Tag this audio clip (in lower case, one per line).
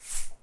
rattle (instrument)
musical instrument
music
percussion